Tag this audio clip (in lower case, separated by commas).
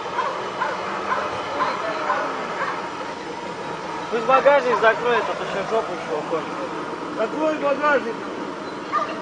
speech, waterfall